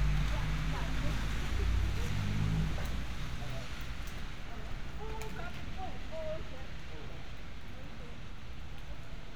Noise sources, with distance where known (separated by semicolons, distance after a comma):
person or small group talking, far